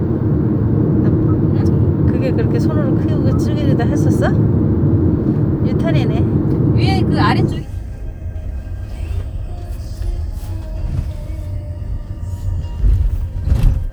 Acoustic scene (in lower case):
car